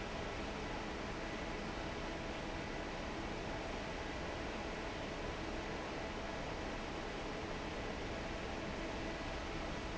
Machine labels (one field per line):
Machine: fan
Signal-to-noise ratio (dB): 0 dB